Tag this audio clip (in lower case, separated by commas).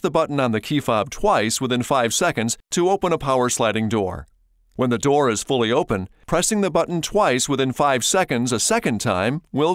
speech